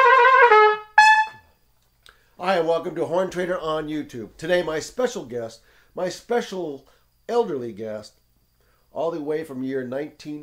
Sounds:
Trumpet, Brass instrument

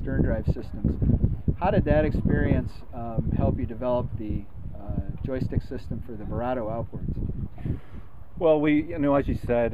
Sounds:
Speech

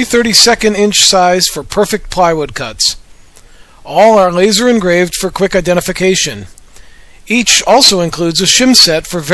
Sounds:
Speech

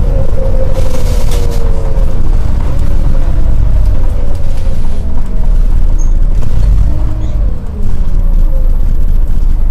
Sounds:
Bus, Vehicle

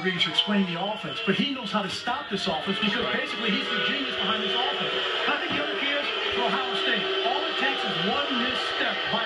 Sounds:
people booing

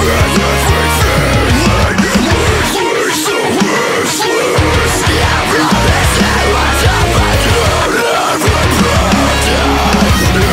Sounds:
Music

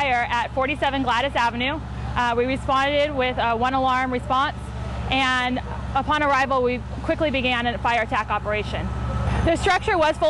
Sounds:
Speech

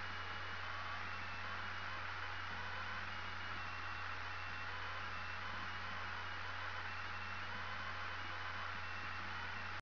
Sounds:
White noise

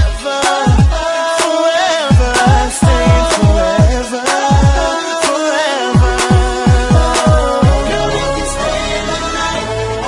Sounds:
Music, Rhythm and blues

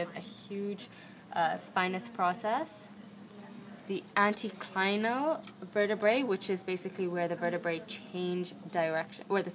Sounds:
Speech

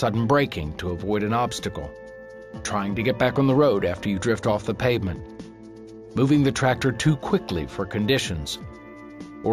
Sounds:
Speech, Music

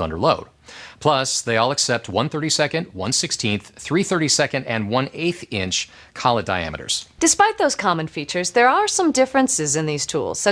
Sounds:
Speech

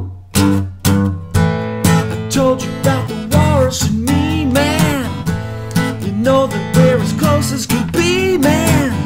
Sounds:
Music

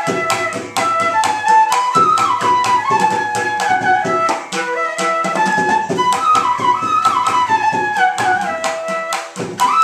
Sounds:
Music, Traditional music

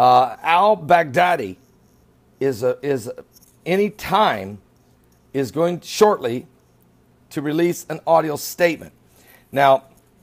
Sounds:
Speech, Male speech

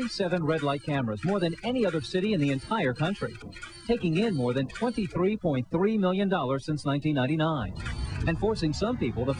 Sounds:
Speech

